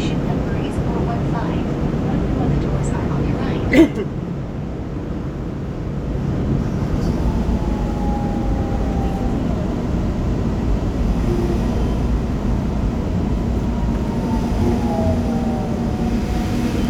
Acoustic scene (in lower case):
subway train